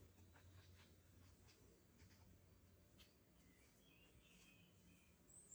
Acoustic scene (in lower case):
park